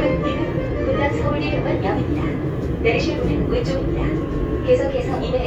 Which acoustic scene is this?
subway train